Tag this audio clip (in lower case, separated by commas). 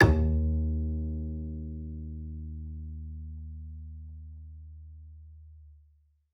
music, musical instrument, bowed string instrument